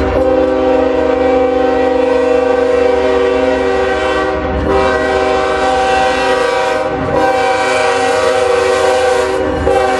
A train horn is blowing